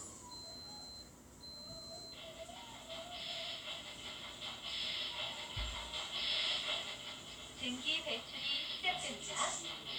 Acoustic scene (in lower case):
kitchen